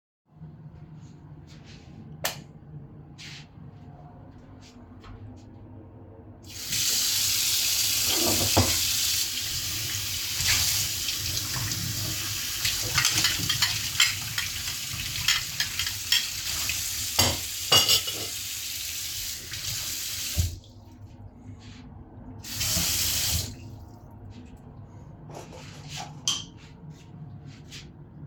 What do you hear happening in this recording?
I went to the kitchen while the ventilation was on. I turned the light on, turned the water on, washed a dish and put it down on the table. I turned the water off, then on and off again.